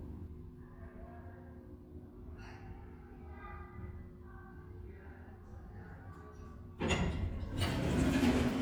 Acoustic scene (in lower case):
elevator